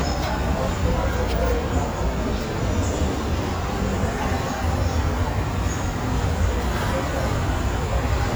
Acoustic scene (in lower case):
subway station